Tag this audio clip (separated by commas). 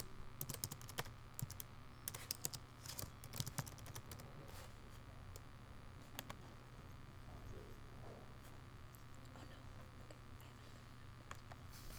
Typing, Domestic sounds, Computer keyboard